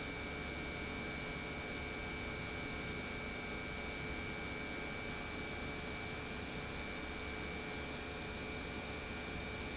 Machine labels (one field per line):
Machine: pump